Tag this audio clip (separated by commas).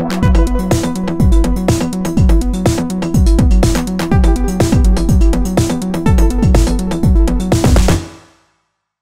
Music